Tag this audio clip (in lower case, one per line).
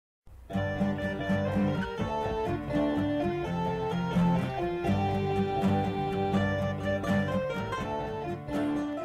guitar
bluegrass